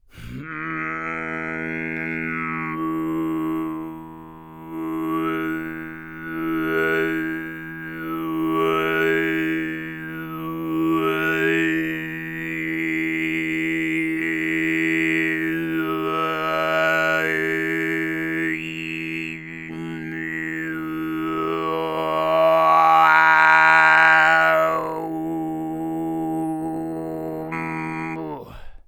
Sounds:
singing, human voice

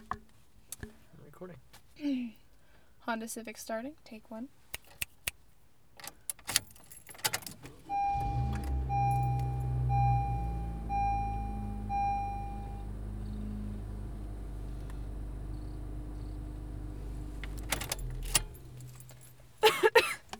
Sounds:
engine starting, engine

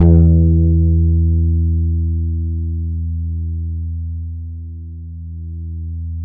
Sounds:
plucked string instrument, music, bass guitar, guitar, musical instrument

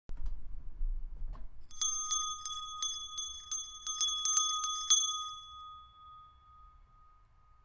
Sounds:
bell

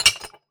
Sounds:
glass, clink

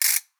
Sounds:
music, musical instrument, ratchet, mechanisms, percussion

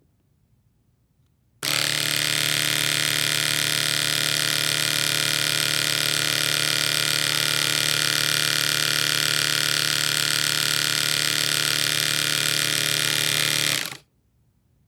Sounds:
domestic sounds

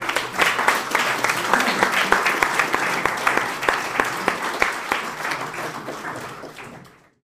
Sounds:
crowd, human group actions, applause

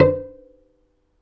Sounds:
bowed string instrument, musical instrument, music

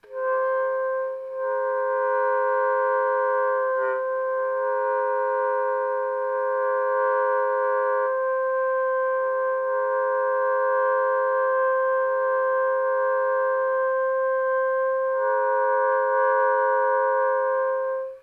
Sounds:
wind instrument, musical instrument, music

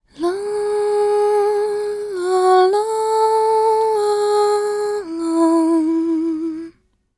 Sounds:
human voice, female singing, singing

